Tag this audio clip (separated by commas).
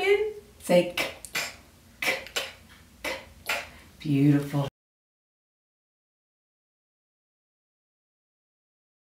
Speech